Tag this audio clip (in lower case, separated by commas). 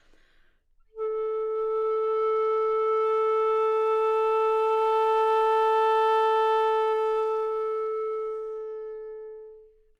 music, woodwind instrument, musical instrument